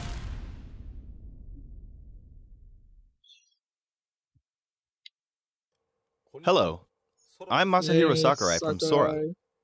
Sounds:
inside a small room
speech

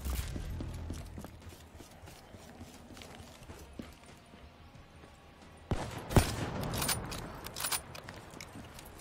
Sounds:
music

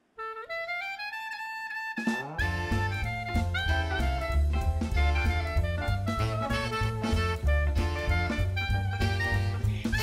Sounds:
music

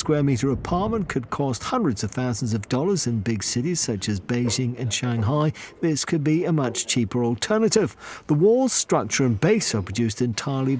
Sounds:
speech

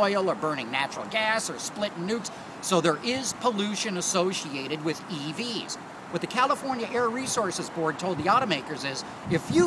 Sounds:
speech

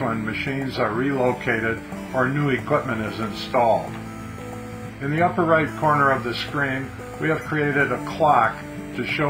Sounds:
speech
music

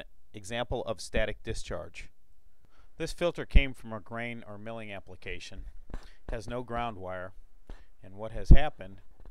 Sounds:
speech

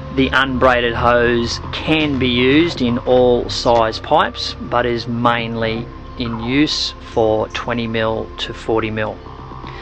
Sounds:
speech
music

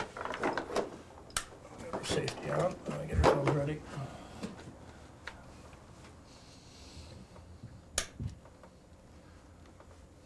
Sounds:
speech

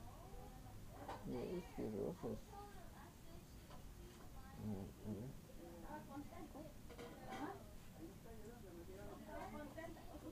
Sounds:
speech

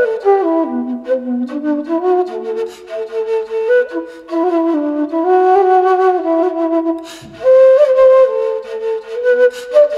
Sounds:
music
playing flute
flute

